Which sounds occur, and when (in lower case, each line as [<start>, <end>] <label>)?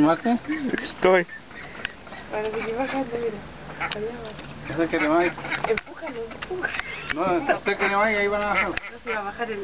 [0.00, 0.43] man speaking
[0.00, 9.63] conversation
[0.00, 9.63] mechanisms
[0.46, 0.91] human voice
[0.68, 0.83] generic impact sounds
[1.00, 1.24] man speaking
[1.26, 2.21] human voice
[1.78, 1.88] tick
[2.28, 3.40] female speech
[2.37, 2.57] generic impact sounds
[2.44, 3.05] duck
[3.12, 3.32] generic impact sounds
[3.73, 3.90] duck
[3.86, 3.94] tick
[3.94, 4.38] female speech
[4.29, 4.47] generic impact sounds
[4.64, 5.63] duck
[4.67, 5.29] man speaking
[5.55, 6.21] generic impact sounds
[5.59, 6.63] female speech
[6.34, 6.46] tick
[6.57, 7.18] duck
[6.71, 6.83] tick
[7.02, 7.17] tick
[7.11, 8.75] man speaking
[7.17, 7.35] generic impact sounds
[7.75, 8.19] duck
[8.36, 8.49] tick
[8.50, 9.20] duck
[8.71, 8.81] tick
[8.76, 9.63] female speech